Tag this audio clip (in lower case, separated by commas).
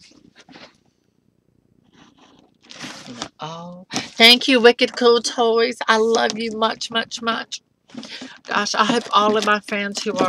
inside a small room, speech